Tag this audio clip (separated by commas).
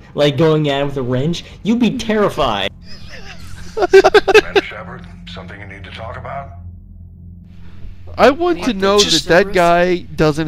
Speech